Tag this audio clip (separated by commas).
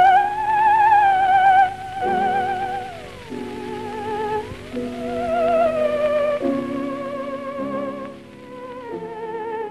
playing theremin